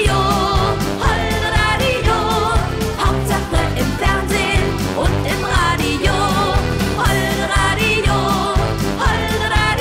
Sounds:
music

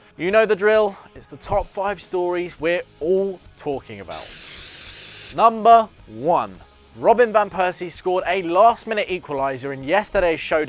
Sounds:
spray, speech, music

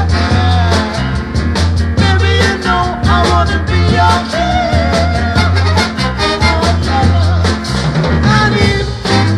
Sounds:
rock and roll, music

